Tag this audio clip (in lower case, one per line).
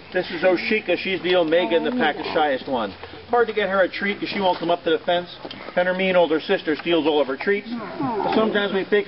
animal
speech